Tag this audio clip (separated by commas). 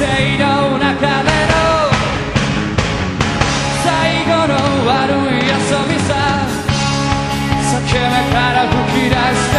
Music